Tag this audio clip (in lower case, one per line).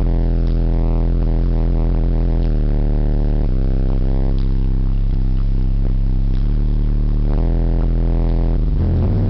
vehicle